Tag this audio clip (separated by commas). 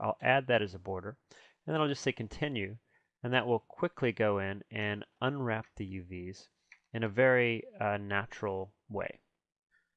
Speech